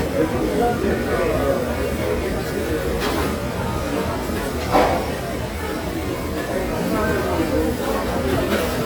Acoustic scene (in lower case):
restaurant